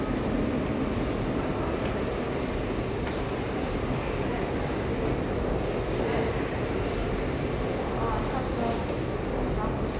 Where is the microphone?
in a subway station